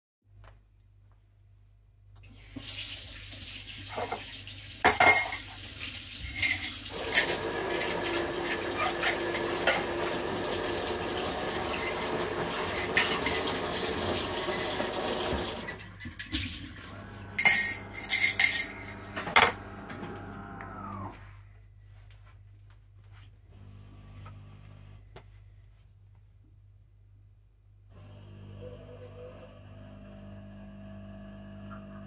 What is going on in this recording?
I took a sponge, turned on the sink, rinsed and cleaned a coffee mug under the running water with the sponge. Meanwhile someone was making coffee with the coffee machine.